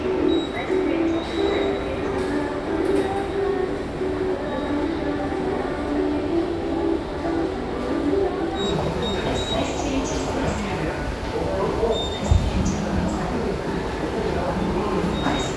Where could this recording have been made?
in a subway station